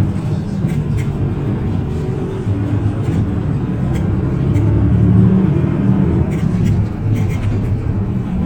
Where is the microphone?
on a bus